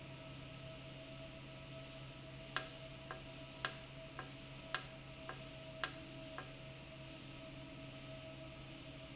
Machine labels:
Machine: valve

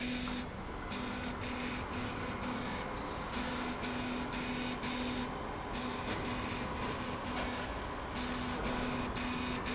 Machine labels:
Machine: slide rail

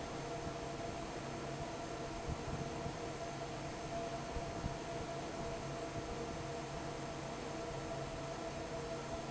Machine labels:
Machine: fan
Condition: normal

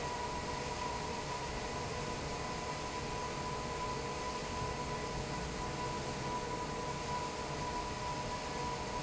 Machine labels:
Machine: fan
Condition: normal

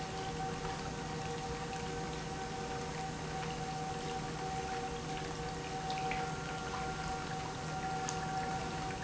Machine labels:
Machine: pump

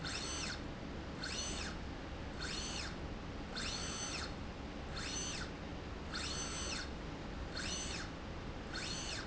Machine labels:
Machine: slide rail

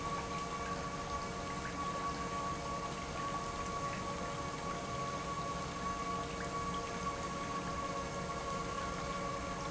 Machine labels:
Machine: pump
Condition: normal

